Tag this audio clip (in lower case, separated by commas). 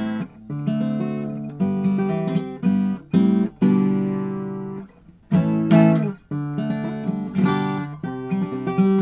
guitar, musical instrument, strum, plucked string instrument, music